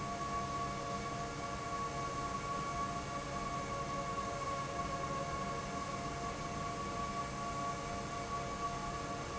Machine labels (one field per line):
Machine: fan